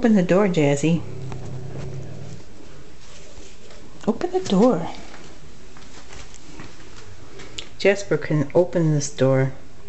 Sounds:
Speech

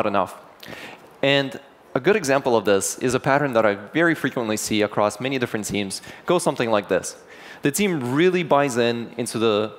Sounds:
Speech

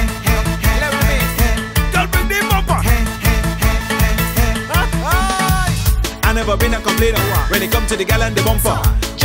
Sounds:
Music

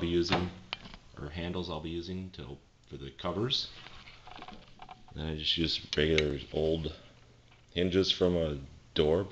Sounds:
Speech

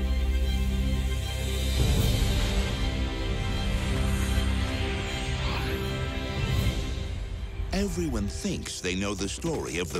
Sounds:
Music, Speech

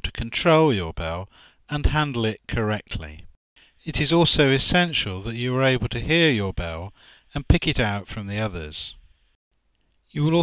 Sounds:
Speech

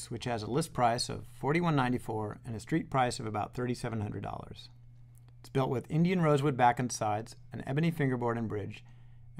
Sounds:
Speech

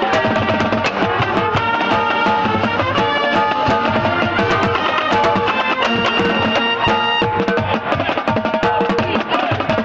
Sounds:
Drum kit, Music, Drum, Snare drum, Musical instrument

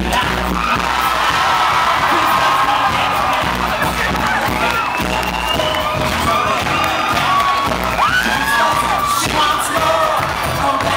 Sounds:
Crowd, Music

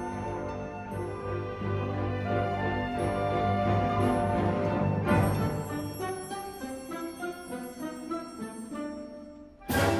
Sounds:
Music

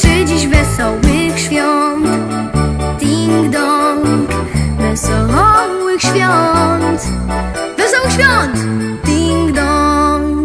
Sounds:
Music

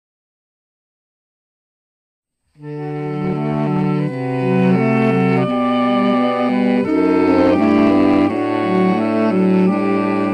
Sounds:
Saxophone, Brass instrument

